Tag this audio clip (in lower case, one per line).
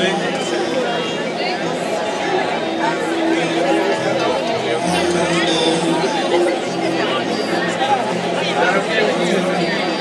speech